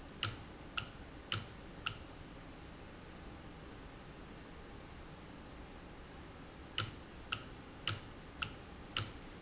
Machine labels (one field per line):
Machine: valve